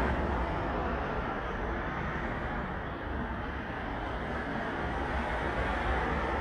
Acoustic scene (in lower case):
street